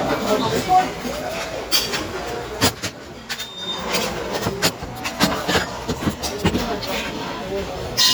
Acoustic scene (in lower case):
restaurant